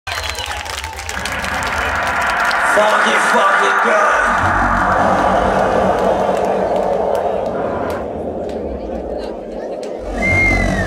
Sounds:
Crowd, people crowd, Music, Speech

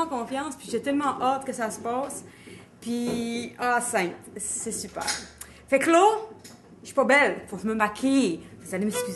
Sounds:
Music, Speech

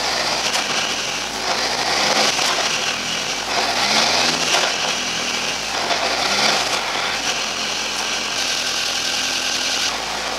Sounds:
Vehicle, Car

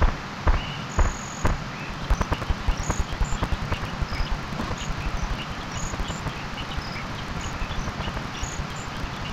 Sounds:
outside, rural or natural

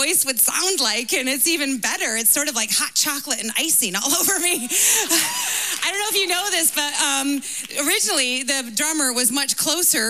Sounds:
Speech

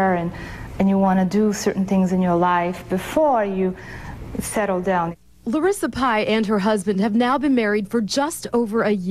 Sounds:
Speech

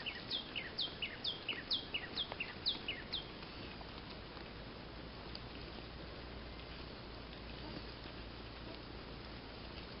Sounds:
bird call

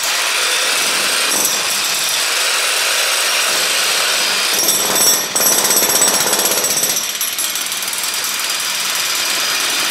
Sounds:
Power tool, Tools

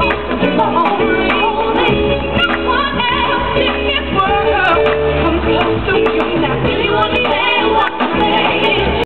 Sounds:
Music

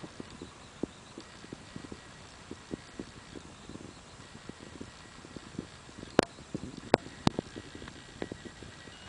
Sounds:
Animal

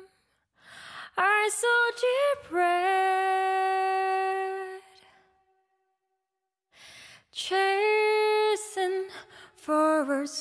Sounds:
Female singing, Music

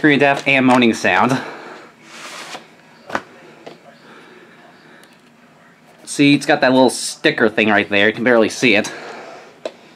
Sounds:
Speech

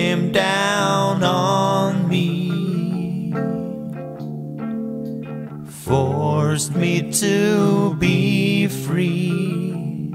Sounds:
Music

